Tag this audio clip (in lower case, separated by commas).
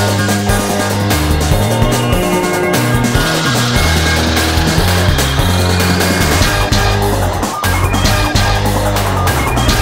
music